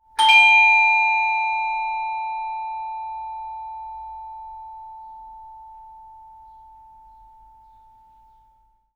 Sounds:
Alarm, Door, home sounds, Bell, Doorbell

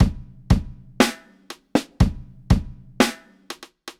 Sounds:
Drum, Percussion, Music, Drum kit, Musical instrument

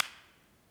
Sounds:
Clapping, Hands

